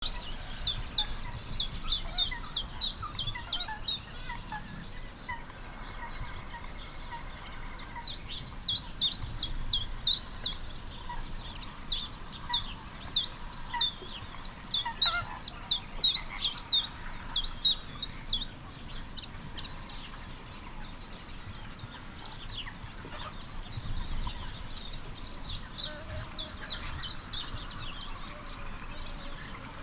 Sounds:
chirp, bird call, wild animals, bird, animal

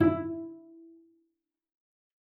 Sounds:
music, musical instrument, bowed string instrument

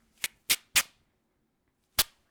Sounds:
tearing

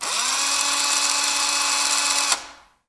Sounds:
tools, drill, power tool

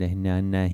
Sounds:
speech, human voice

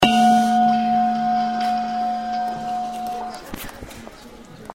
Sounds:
bell

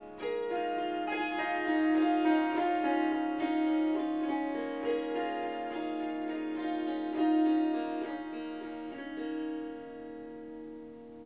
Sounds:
music, harp, musical instrument

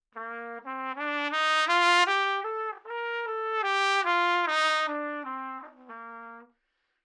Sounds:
music, musical instrument, brass instrument, trumpet

